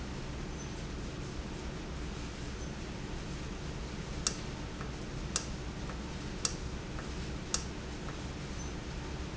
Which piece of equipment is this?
valve